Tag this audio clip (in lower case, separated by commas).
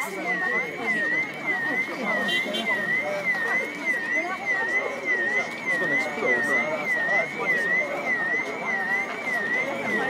speech